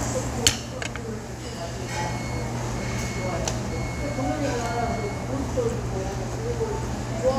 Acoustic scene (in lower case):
restaurant